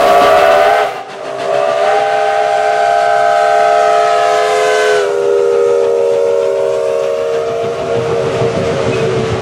A train approaches with a horn blowing